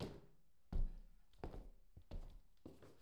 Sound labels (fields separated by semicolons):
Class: footsteps; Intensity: low